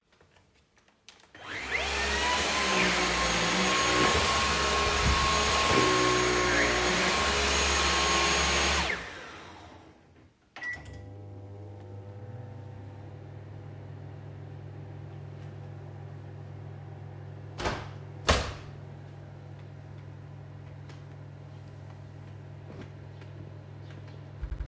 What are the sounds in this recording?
vacuum cleaner, microwave, window